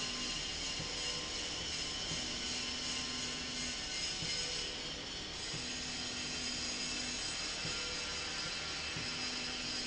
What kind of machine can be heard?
slide rail